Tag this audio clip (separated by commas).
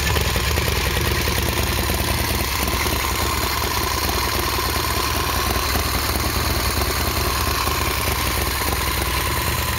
driving motorcycle, Vehicle, Motorcycle, Engine, Motor vehicle (road)